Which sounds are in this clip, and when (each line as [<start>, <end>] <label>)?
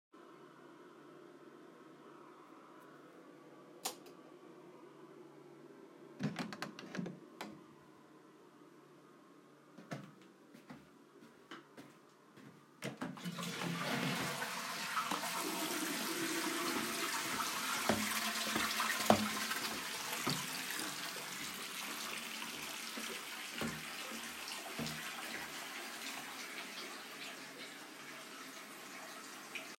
[3.83, 4.00] light switch
[6.20, 7.55] door
[9.77, 12.54] footsteps
[12.82, 20.94] toilet flushing
[15.11, 29.78] running water
[17.89, 20.84] footsteps